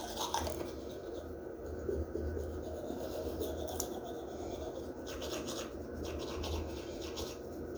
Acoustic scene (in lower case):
restroom